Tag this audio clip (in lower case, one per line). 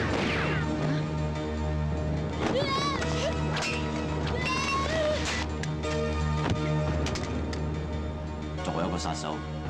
speech
music